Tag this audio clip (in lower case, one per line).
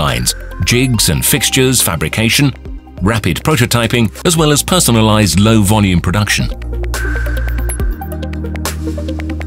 music
speech